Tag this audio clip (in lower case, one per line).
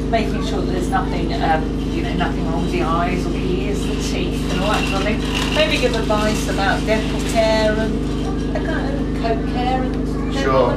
speech